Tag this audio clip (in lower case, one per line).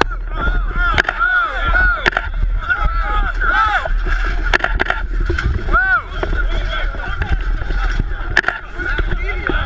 single-lens reflex camera
speech